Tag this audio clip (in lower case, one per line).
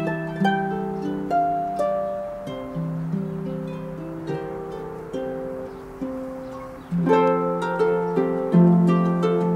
harp
pizzicato